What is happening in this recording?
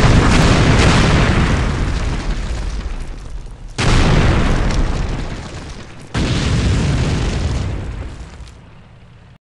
Multiple heavy explosions from weaponry